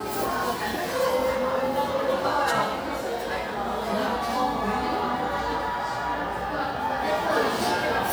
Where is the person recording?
in a cafe